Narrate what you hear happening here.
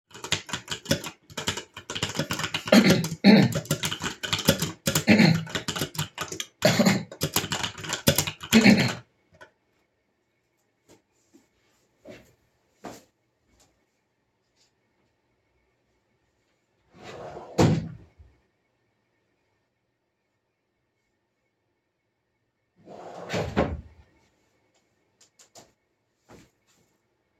I was typing on a keyboard, then I started coughing so I stopped typing, got up and walked over to a drawer, opened the drawer got some cough medicine, then I have shut the drawer.